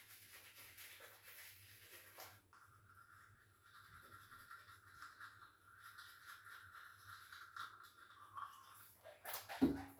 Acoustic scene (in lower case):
restroom